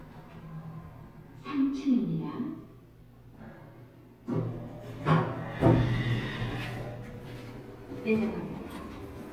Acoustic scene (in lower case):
elevator